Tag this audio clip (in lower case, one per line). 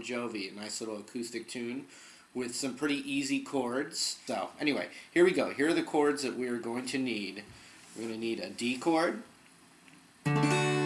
speech